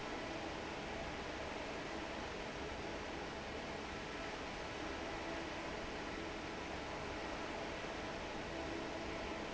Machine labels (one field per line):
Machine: fan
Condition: normal